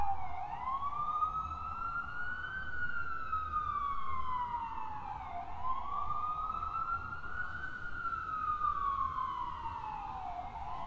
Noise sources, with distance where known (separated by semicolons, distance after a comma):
siren